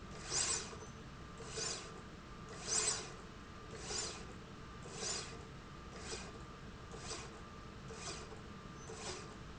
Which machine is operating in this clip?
slide rail